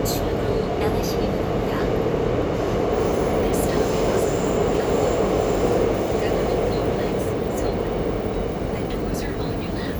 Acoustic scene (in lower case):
subway train